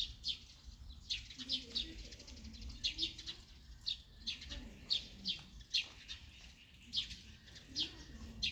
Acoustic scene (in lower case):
park